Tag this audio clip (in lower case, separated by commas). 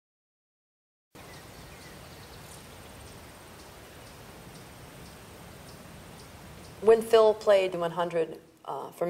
speech